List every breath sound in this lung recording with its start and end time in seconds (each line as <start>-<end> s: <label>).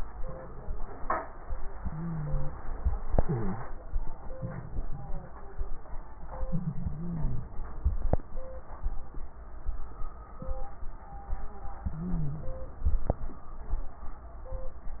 1.72-2.56 s: inhalation
1.72-2.56 s: crackles
3.07-3.67 s: exhalation
3.07-3.67 s: crackles
6.80-7.50 s: inhalation
6.80-7.50 s: crackles
11.83-12.53 s: inhalation
11.83-12.53 s: crackles